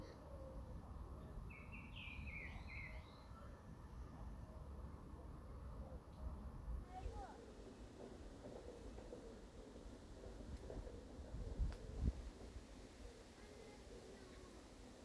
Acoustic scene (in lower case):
park